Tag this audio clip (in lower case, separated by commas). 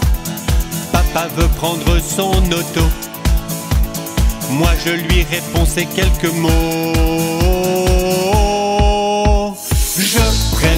music